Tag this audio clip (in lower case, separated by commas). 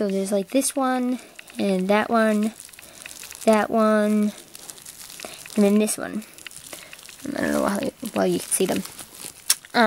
inside a small room, speech